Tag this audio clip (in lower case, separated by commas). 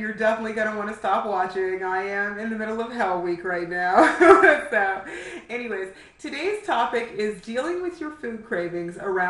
speech